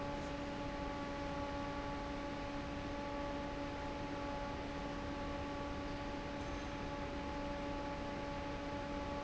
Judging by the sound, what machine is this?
fan